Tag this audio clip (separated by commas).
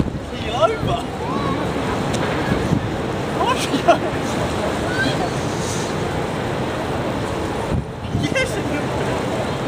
Water vehicle, Ship, Speech, Vehicle